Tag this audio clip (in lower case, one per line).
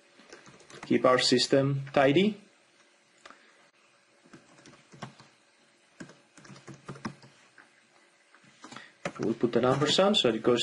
speech